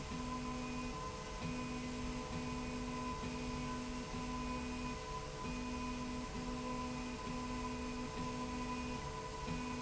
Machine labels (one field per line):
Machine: slide rail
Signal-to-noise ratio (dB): 0 dB